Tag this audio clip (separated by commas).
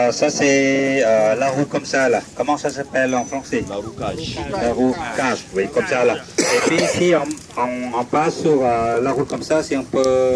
Speech